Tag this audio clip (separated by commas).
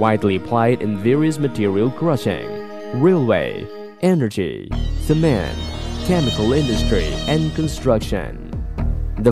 Speech, Music